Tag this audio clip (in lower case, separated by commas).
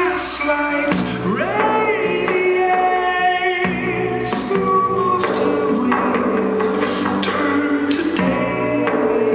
music